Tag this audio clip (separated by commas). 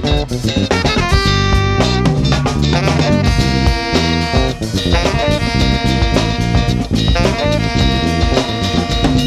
Music